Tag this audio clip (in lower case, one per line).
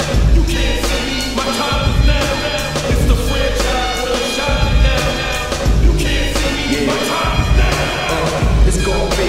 music